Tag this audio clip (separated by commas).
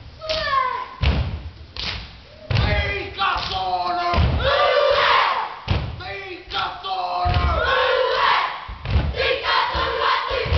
Tap, Thump